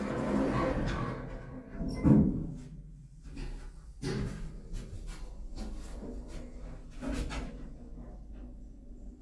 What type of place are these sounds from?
elevator